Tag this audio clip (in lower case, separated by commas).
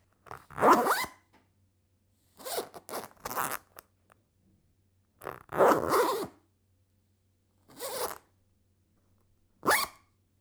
zipper (clothing), home sounds